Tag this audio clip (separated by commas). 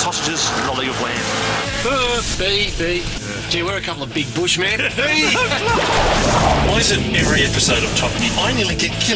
outside, rural or natural, Speech, Music, Vehicle